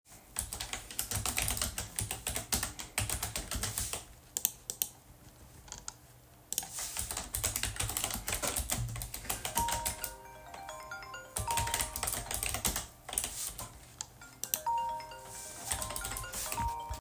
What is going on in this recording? I was typing on my keyboard while my phone was ringing